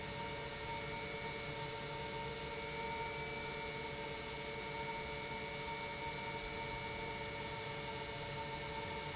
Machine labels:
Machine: pump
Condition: normal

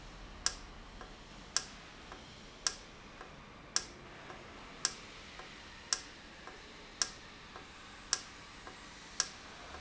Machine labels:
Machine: valve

